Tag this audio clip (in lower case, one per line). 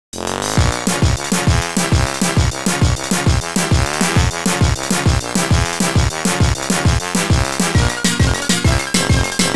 music